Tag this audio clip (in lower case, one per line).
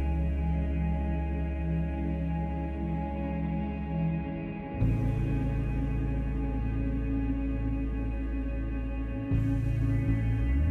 music